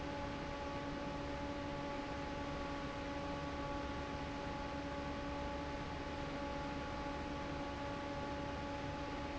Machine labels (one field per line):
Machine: fan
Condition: normal